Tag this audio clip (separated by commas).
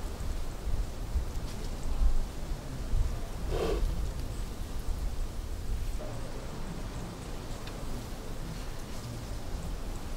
cheetah chirrup